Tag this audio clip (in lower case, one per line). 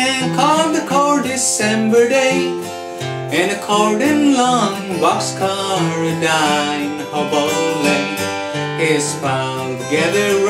music
male singing